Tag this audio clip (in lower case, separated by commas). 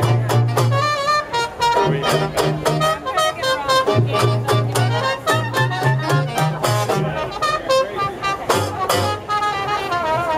speech, music